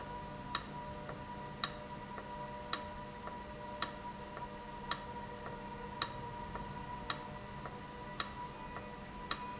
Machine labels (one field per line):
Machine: valve